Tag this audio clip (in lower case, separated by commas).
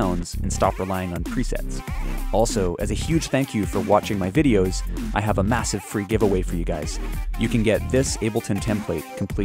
speech, music